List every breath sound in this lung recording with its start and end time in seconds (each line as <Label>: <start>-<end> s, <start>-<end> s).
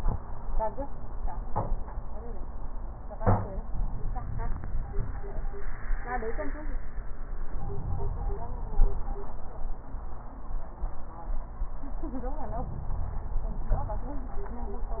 Inhalation: 7.45-8.69 s